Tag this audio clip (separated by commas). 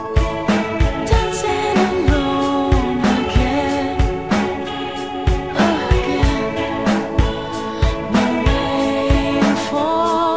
Music